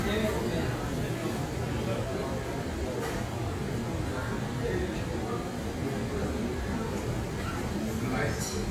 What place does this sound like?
crowded indoor space